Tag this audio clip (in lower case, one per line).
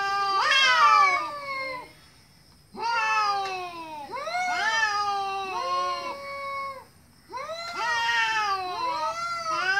cat growling